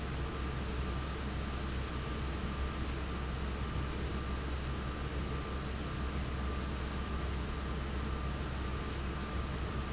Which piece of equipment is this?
fan